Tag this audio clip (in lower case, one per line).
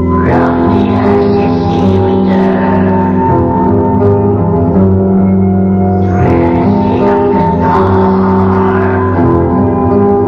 music